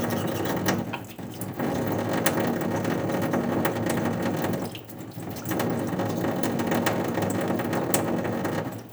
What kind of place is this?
restroom